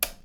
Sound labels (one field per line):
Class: switch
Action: being turned off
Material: plastic